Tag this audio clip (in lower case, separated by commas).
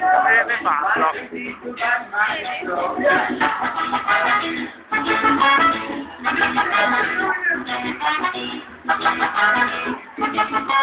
music, speech